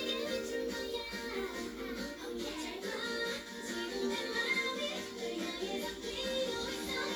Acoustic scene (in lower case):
cafe